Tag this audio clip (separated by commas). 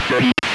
Human voice, Speech